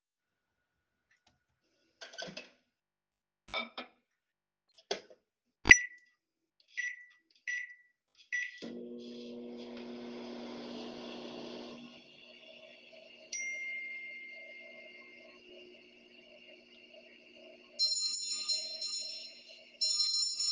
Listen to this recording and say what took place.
I started the microwave in the kitchen. Then my phone rang and the doorbell rang.